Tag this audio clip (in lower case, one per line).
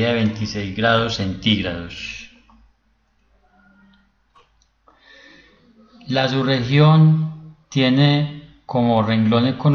speech